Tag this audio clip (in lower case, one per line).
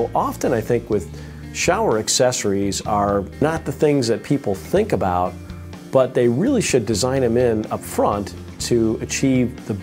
speech
music